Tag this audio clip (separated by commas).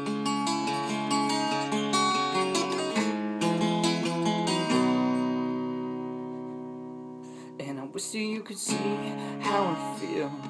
Music, Guitar, Plucked string instrument, Musical instrument, Strum